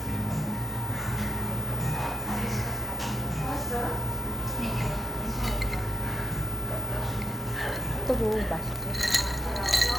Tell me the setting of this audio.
cafe